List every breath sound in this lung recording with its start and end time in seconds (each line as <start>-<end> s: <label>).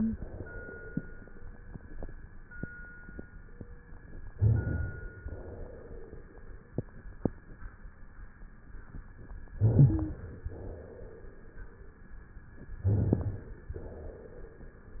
4.33-5.26 s: inhalation
4.35-4.71 s: rhonchi
5.26-6.24 s: exhalation
9.54-10.49 s: inhalation
9.60-10.21 s: wheeze
10.49-11.48 s: exhalation
12.85-13.55 s: rhonchi
12.87-13.70 s: inhalation
13.72-14.65 s: exhalation